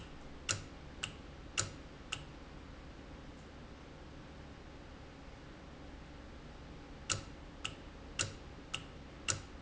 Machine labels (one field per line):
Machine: valve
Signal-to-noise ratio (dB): 6 dB